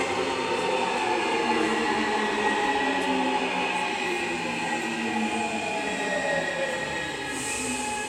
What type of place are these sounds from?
subway station